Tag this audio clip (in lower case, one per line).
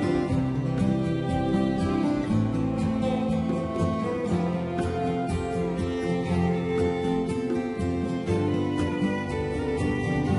music
musical instrument